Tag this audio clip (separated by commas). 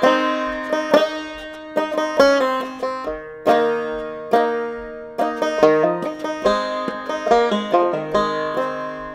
Banjo